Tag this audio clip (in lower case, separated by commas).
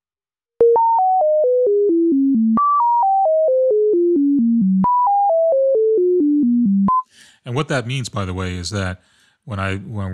speech, synthesizer